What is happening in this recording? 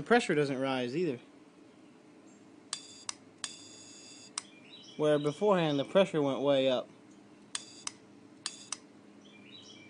A man speaks and a small machine whirs shortly several times while birds chirp in the background